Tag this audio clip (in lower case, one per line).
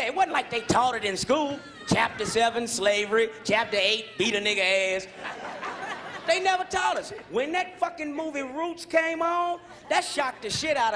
speech